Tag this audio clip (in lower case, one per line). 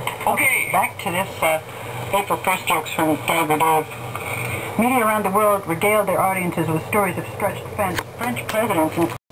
speech
radio